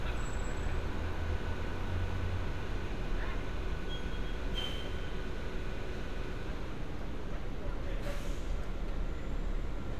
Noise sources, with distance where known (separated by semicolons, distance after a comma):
large-sounding engine